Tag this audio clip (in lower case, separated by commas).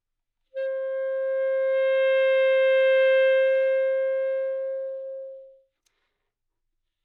musical instrument, wind instrument, music